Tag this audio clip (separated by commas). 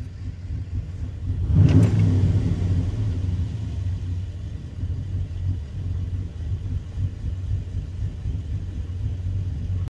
Car, Vehicle